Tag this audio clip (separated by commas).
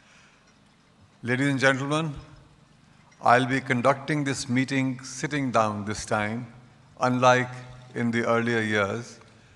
Male speech, monologue, Speech